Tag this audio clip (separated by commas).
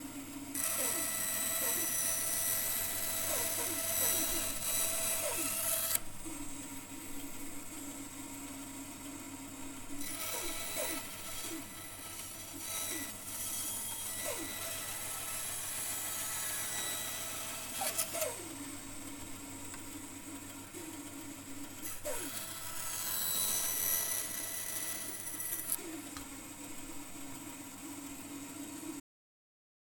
Tools, Sawing